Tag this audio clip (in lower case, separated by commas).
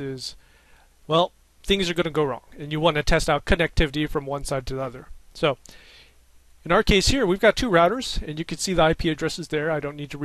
speech